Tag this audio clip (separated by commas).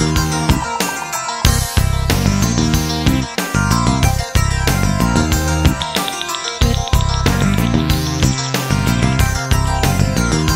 Music